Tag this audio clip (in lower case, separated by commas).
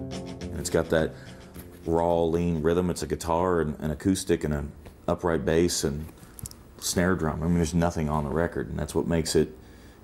music, speech